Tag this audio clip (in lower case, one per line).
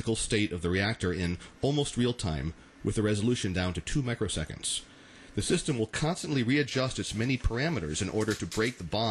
speech